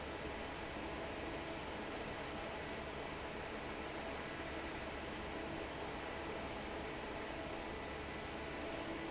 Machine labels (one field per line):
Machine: fan